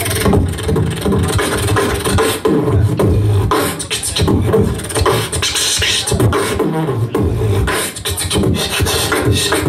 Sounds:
music, beatboxing

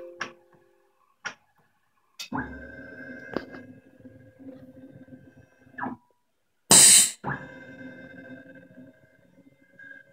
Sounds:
tools

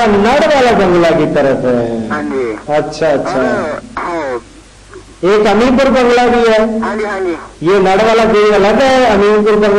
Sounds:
speech

